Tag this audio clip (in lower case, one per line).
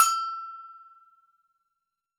bell